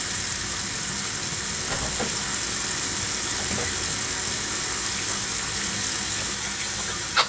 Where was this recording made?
in a kitchen